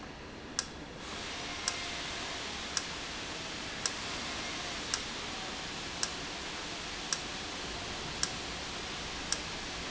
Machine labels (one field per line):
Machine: valve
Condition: normal